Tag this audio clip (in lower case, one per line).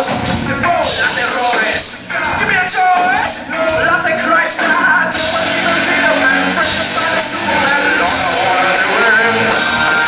music